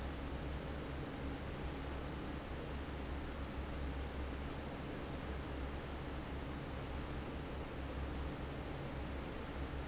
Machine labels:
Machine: fan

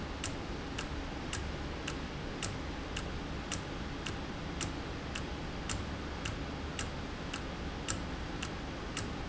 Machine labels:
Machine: valve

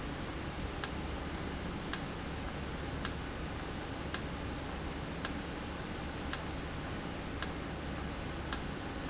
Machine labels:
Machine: valve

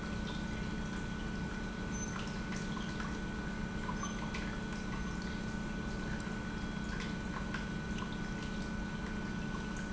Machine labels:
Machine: pump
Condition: normal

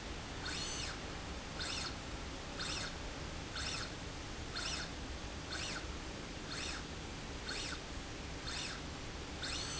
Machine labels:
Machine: slide rail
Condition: normal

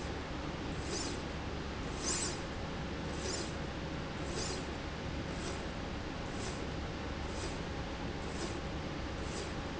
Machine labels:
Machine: slide rail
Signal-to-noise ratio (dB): -6 dB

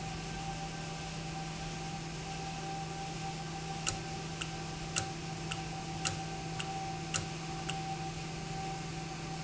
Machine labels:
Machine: valve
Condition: normal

